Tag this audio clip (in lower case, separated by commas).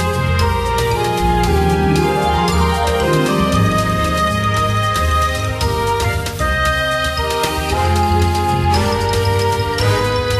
music, rhythm and blues